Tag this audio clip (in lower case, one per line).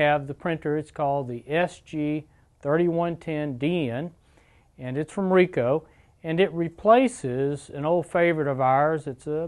speech